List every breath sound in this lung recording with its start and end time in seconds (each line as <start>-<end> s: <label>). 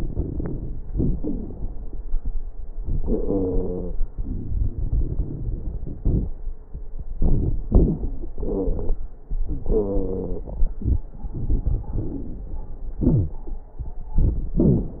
0.00-0.78 s: inhalation
0.00-0.78 s: crackles
0.90-1.88 s: exhalation
0.90-1.88 s: crackles
2.86-3.96 s: inhalation
3.03-3.96 s: wheeze
4.14-6.29 s: exhalation
4.14-6.29 s: crackles
7.17-8.30 s: inhalation
7.17-8.30 s: crackles
8.36-9.15 s: exhalation
8.36-9.15 s: wheeze
9.45-11.06 s: inhalation
9.71-10.54 s: wheeze
11.41-12.51 s: inhalation
11.41-12.51 s: crackles
12.98-13.43 s: wheeze
14.58-15.00 s: wheeze